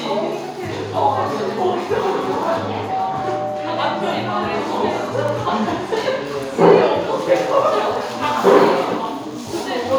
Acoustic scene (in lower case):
cafe